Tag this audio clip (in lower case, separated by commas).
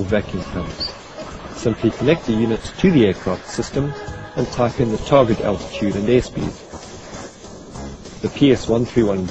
hum